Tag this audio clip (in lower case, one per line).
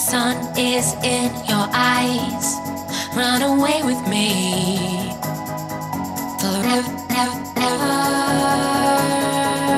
music